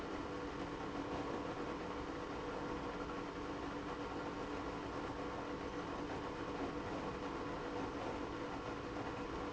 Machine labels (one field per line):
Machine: pump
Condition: abnormal